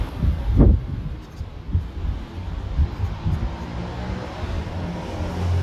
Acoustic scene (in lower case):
residential area